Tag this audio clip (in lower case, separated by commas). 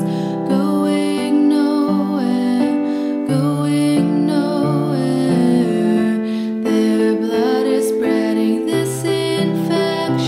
music